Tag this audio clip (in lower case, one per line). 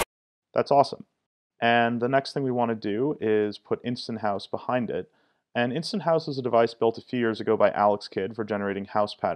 speech